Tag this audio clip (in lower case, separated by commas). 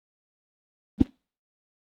swish